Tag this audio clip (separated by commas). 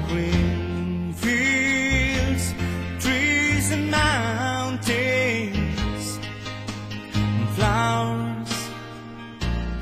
Music